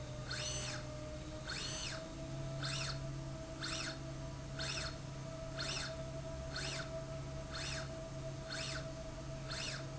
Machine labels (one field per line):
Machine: slide rail